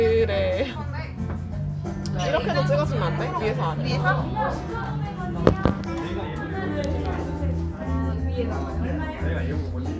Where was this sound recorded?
in a crowded indoor space